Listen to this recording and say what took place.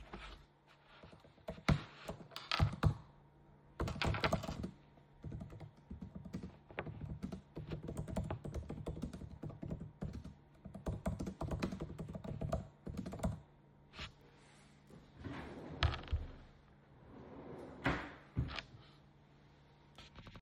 I type on my laptop’s keyboard, then move my chair back, lean to the side, then open and close a drawer.